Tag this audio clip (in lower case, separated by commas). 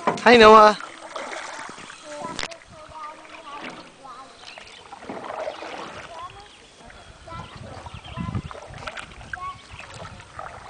kayak, boat